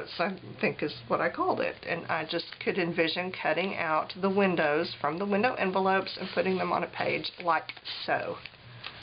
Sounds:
Speech

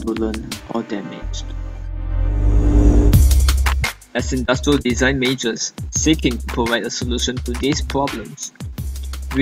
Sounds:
Speech, Music

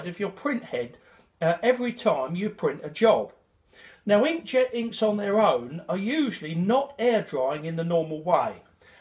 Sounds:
Speech

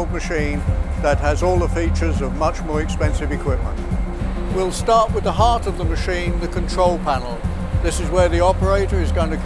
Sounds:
Music, Speech

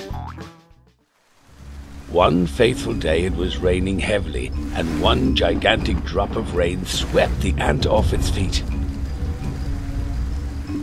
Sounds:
Speech, Music

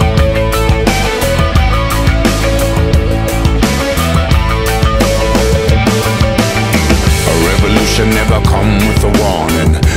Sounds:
Music, Grunge

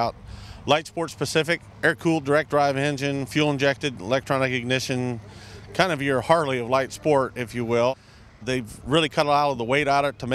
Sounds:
Speech

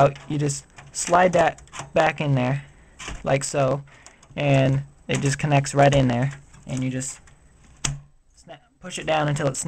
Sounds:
Speech

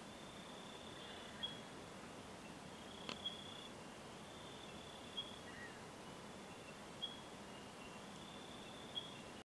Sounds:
outside, rural or natural, Animal

